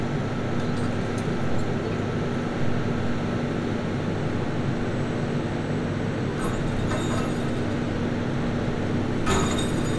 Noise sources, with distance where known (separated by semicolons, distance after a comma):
engine of unclear size, near